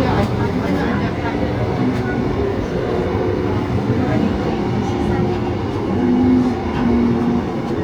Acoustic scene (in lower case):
subway train